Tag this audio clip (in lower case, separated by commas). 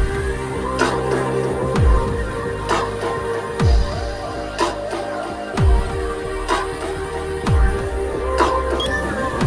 dubstep, electronic music, music